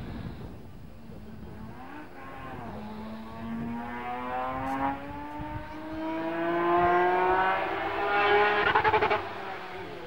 A racing car speeding back and revving out